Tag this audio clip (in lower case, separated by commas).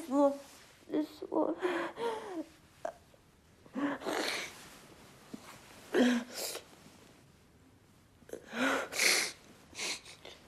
speech, inside a small room